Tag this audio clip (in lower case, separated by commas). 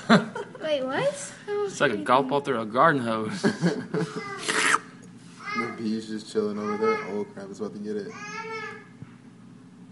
speech, inside a small room